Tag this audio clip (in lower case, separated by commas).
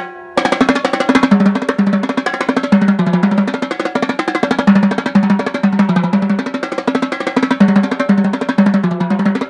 playing snare drum